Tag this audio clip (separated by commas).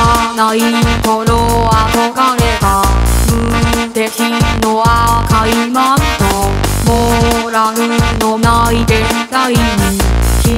Music, Rattle